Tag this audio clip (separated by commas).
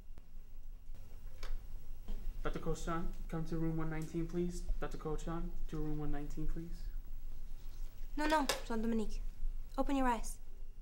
Speech